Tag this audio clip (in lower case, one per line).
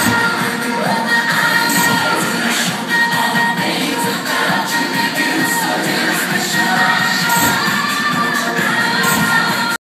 music
burst